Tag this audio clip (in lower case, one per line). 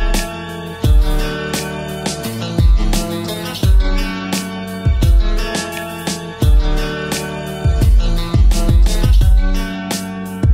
plucked string instrument
guitar
strum
music
musical instrument